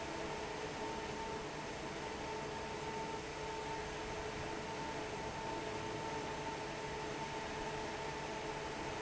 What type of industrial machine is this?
fan